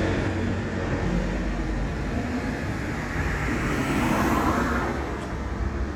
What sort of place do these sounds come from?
street